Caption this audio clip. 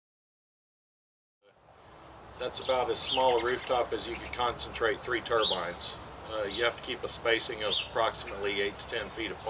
Bird chirping, and leaves rustling as a man speaks